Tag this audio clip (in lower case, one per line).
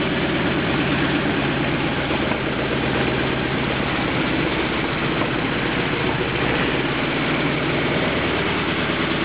idling
engine
heavy engine (low frequency)